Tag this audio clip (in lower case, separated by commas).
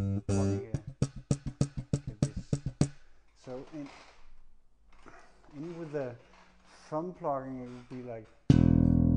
speech, music, plucked string instrument, guitar, bass guitar, musical instrument